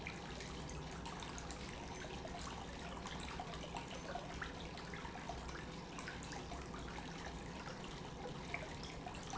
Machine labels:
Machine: pump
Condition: normal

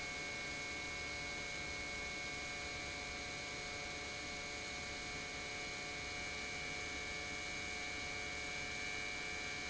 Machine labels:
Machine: pump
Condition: normal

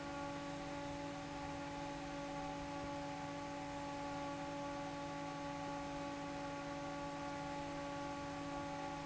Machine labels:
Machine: fan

